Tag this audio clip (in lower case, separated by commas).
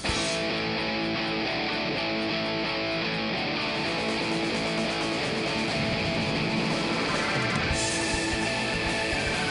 music, heavy metal